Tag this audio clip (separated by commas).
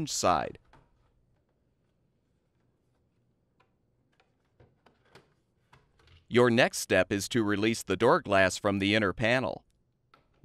Speech